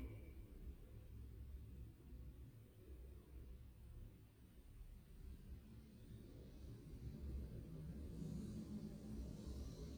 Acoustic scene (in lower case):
elevator